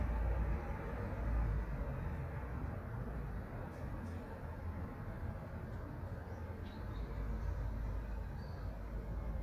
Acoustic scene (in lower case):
residential area